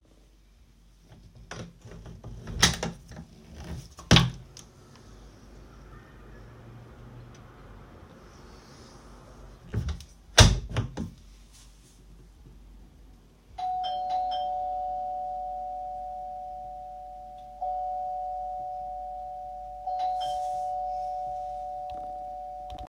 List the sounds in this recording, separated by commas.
window, bell ringing